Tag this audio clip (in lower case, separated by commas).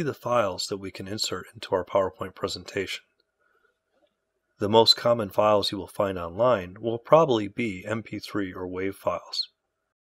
speech